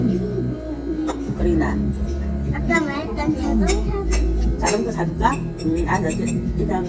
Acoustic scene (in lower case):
restaurant